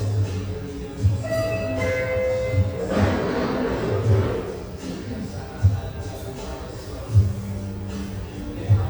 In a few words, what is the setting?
cafe